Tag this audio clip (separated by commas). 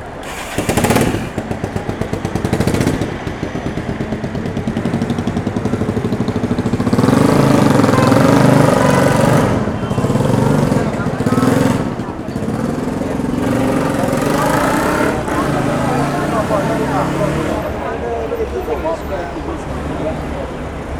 Motor vehicle (road), Motorcycle, Vehicle